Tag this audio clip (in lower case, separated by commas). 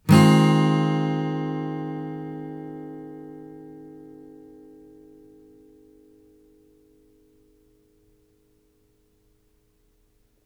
strum, music, plucked string instrument, musical instrument, guitar